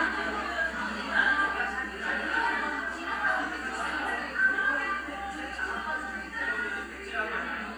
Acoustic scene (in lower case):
crowded indoor space